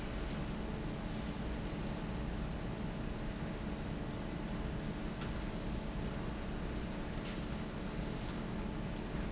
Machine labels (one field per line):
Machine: fan